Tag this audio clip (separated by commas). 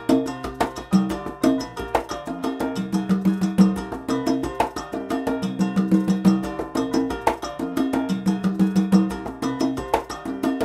playing congas